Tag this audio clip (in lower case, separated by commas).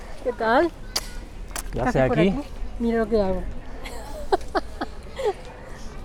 speech, human voice